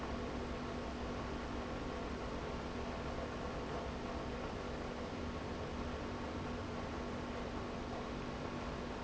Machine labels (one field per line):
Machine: pump